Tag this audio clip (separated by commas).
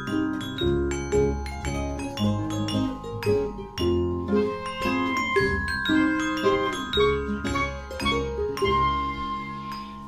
Glockenspiel, Music, Guitar, inside a small room, Classical music